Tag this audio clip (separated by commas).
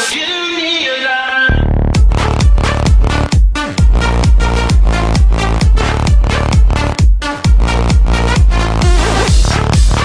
Music